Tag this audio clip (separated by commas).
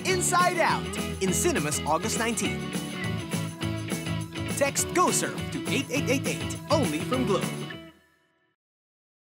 Speech, Music